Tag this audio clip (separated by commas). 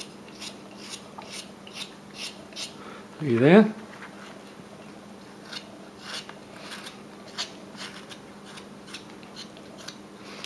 Speech